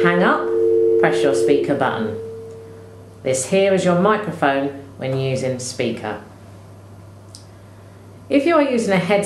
A girl speaking and a signal passed by the end of the speech